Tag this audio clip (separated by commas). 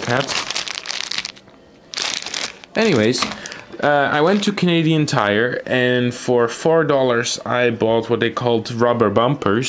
typing on typewriter